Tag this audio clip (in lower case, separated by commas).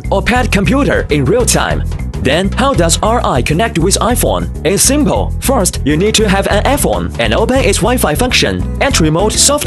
music, speech